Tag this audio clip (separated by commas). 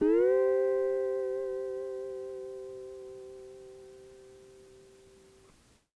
Musical instrument, Music, Plucked string instrument, Guitar